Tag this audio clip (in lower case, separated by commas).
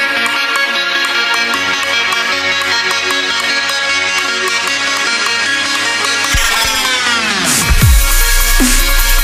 dubstep, electronic music, music